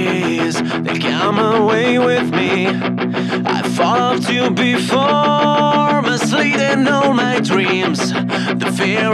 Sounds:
music

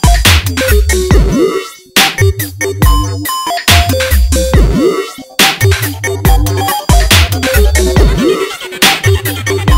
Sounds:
dubstep
music

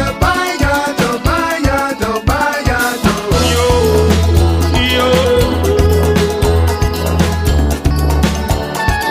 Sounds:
music

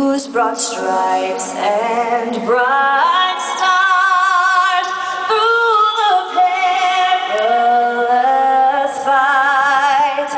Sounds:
music

